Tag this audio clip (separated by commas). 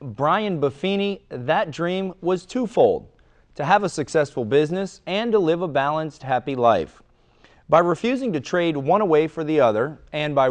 Speech